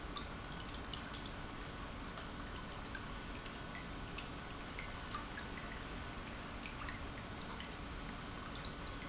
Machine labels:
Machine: pump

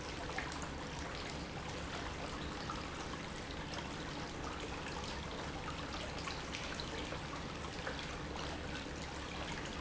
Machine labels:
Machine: pump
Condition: normal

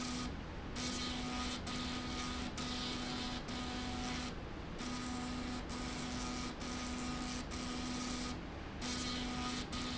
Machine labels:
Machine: slide rail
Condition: abnormal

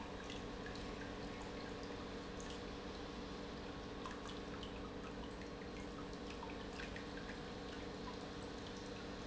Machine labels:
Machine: pump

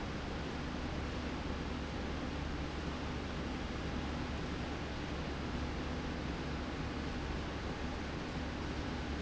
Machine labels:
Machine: slide rail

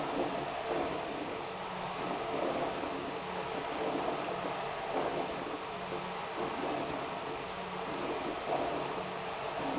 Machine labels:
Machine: pump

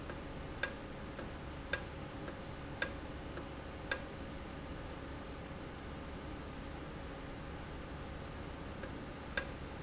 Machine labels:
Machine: valve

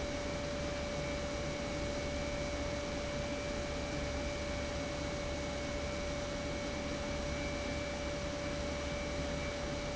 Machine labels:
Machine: pump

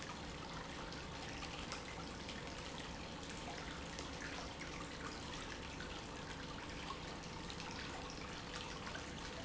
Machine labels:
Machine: pump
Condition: normal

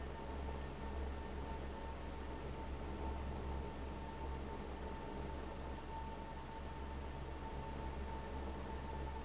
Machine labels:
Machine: fan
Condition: abnormal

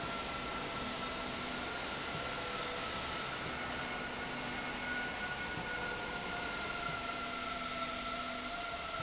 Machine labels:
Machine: slide rail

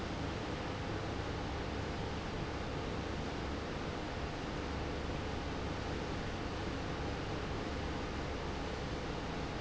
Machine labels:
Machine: pump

